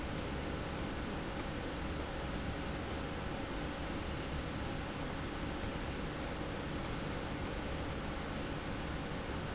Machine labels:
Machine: slide rail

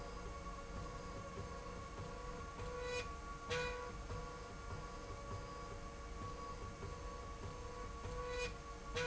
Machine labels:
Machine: slide rail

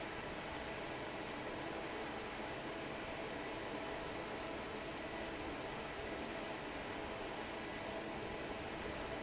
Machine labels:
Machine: fan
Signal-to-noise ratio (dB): 6 dB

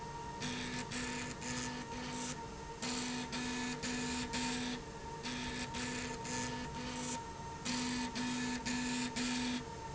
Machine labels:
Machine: slide rail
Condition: abnormal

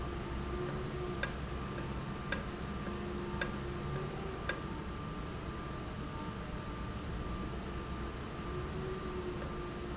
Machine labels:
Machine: valve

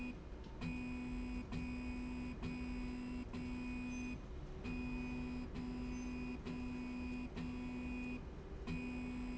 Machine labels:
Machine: slide rail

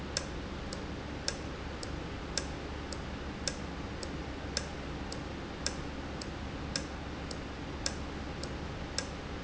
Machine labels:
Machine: valve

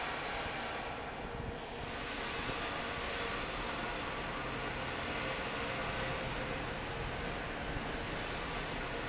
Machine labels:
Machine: fan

